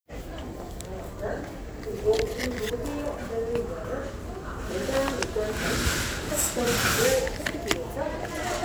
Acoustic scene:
crowded indoor space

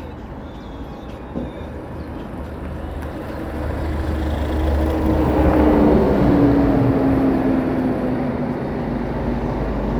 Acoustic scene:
street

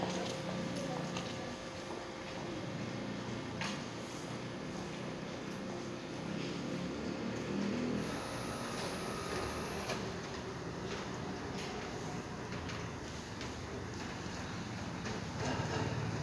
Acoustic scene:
residential area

